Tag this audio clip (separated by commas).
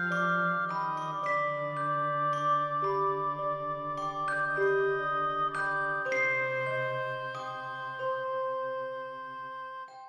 Music